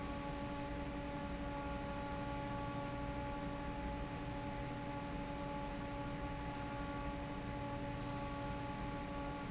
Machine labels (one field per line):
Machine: fan